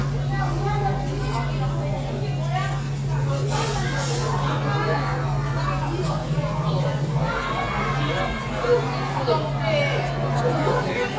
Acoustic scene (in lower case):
restaurant